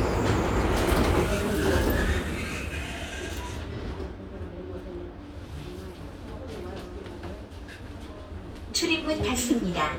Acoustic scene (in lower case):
subway train